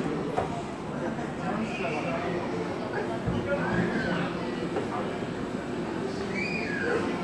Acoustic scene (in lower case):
cafe